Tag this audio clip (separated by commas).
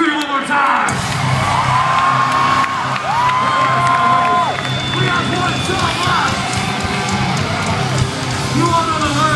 Music, Speech